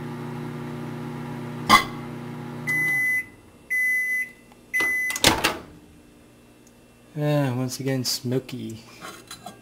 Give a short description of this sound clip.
A low hum and small blast is followed by a microwave timer going off and a guy talks